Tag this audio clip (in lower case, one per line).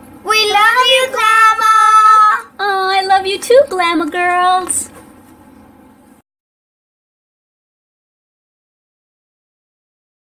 kid speaking